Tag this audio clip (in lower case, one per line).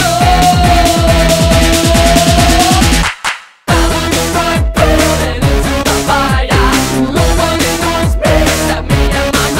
music